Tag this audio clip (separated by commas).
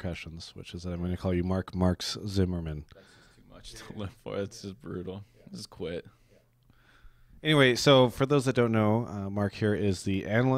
Speech